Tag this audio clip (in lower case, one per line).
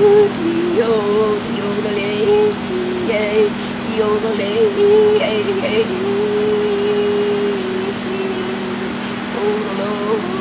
music